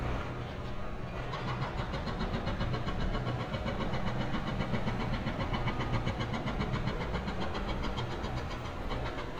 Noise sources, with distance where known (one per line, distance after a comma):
unidentified impact machinery